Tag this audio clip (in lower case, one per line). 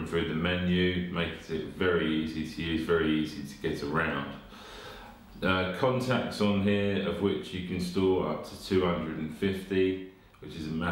speech